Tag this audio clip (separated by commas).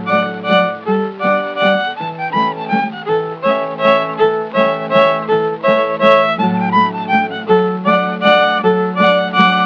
Music, Musical instrument, playing violin, Violin